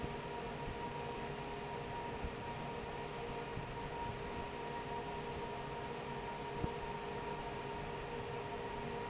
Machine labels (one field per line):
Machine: fan